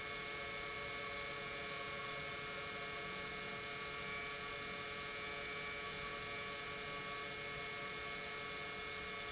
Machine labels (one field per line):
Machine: pump